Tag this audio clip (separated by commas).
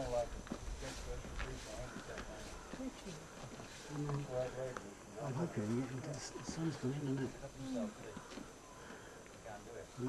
Speech